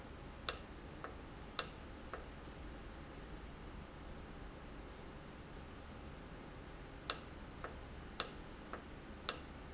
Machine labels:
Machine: valve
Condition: normal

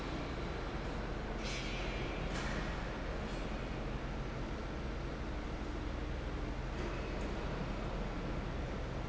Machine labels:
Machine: fan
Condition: normal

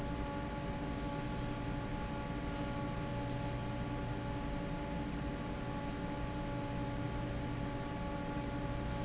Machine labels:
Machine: fan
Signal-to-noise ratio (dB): -6 dB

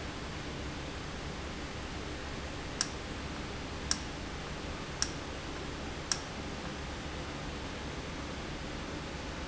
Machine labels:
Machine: valve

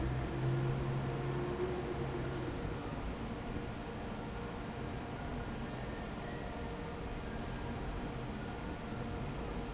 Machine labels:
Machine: fan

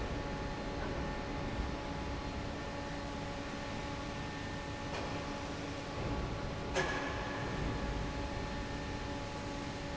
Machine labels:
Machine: fan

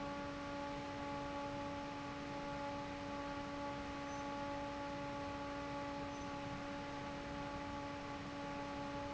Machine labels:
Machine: fan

